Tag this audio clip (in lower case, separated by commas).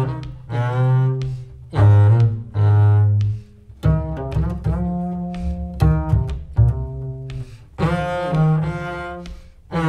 playing double bass